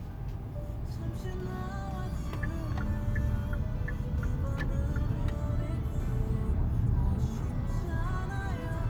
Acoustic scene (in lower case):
car